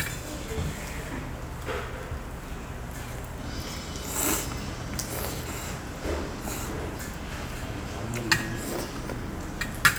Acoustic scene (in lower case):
restaurant